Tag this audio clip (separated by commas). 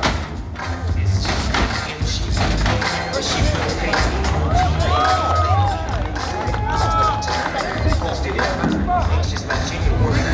Speech, Music